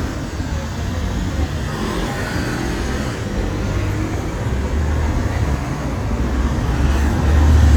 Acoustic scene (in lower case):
street